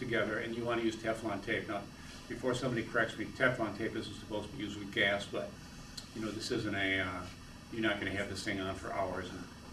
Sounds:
speech

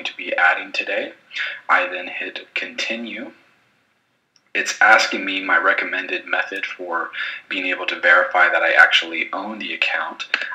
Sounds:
speech

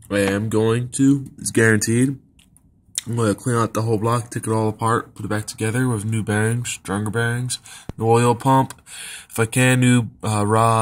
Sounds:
speech

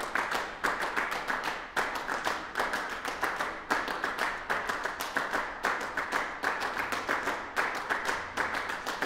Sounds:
clapping

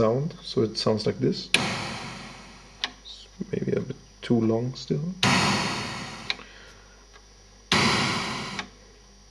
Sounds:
speech
synthesizer

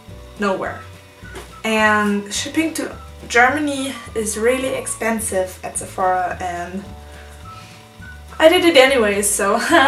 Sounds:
music
speech

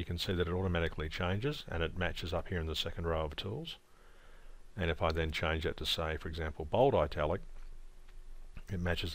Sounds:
speech

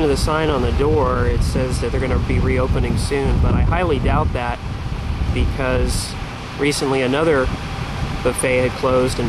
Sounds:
speech

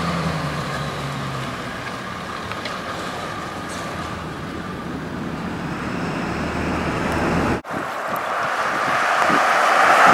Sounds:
engine
car
vehicle
truck

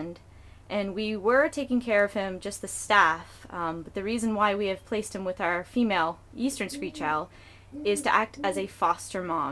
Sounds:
speech

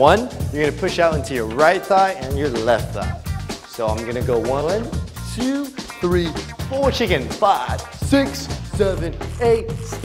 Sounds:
music
speech

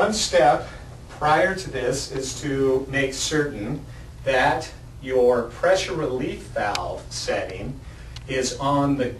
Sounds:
speech

